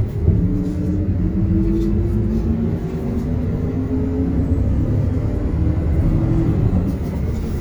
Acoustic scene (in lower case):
bus